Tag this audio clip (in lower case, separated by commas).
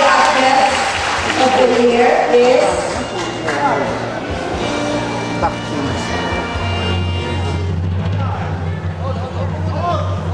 speech, music, inside a large room or hall